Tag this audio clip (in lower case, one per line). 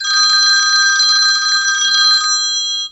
alarm
telephone